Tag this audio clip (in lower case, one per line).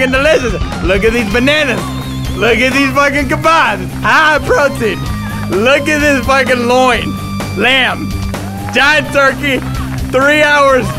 speech
music